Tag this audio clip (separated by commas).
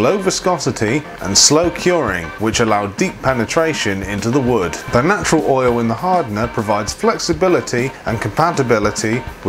Music, Speech